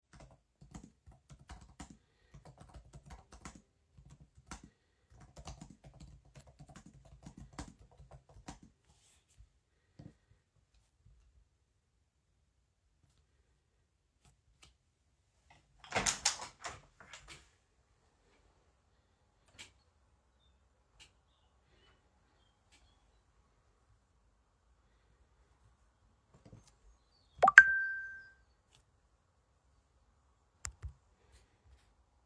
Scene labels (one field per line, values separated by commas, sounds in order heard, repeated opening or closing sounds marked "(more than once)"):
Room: bedroom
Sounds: keyboard typing, window, phone ringing